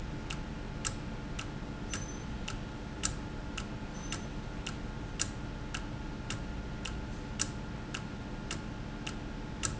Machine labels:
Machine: valve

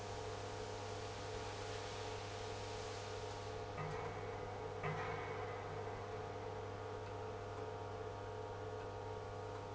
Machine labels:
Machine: pump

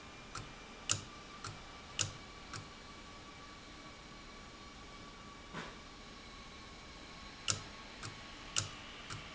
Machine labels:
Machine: valve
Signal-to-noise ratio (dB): 6 dB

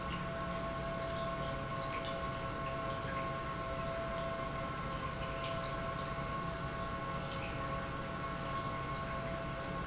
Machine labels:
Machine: pump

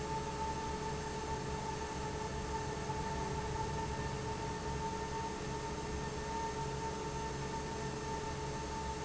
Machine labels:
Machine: fan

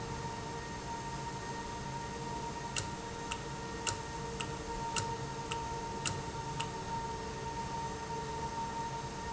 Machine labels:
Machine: valve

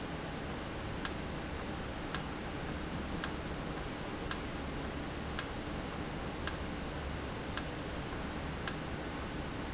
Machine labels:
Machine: valve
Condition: normal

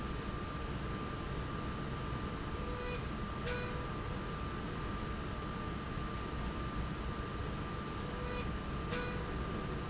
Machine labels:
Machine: slide rail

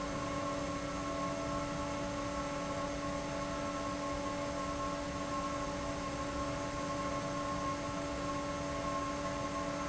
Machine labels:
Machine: fan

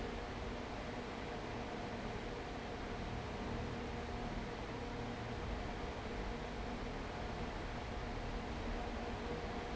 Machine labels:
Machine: fan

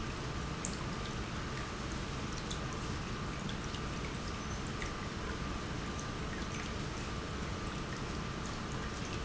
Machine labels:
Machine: pump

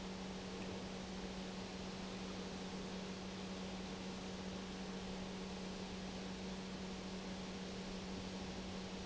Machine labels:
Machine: pump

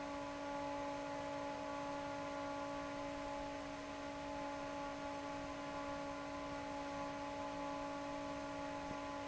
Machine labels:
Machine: fan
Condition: normal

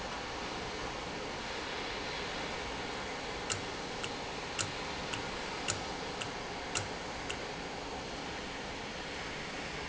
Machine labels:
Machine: valve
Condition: normal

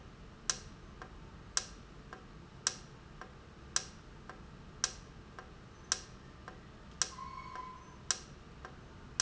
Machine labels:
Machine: valve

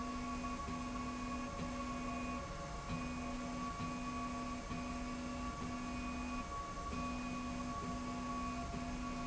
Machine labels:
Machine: slide rail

